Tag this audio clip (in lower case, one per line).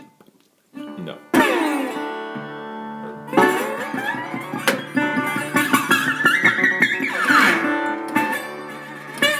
musical instrument
plucked string instrument
blues
guitar
acoustic guitar
music
speech